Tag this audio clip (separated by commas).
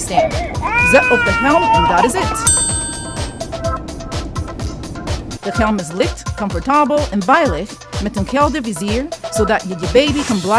Music, infant cry, Speech